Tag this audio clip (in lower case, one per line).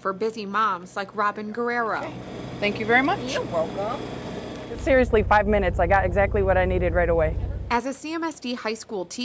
speech
vehicle